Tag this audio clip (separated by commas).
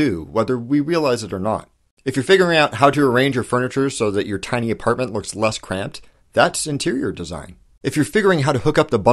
Speech